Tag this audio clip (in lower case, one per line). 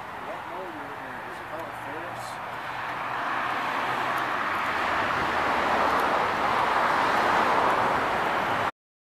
vehicle
speech